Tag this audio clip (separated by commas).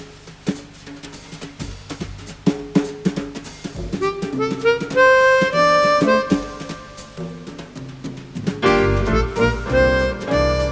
Drum kit, Drum, Music, Musical instrument